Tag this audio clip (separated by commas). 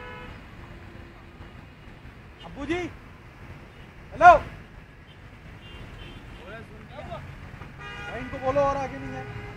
Vehicle, Speech